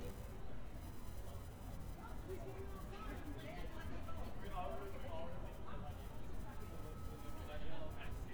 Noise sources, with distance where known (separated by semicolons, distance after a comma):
person or small group talking, near